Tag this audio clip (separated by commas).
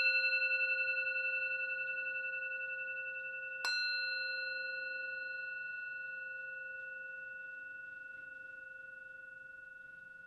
singing bowl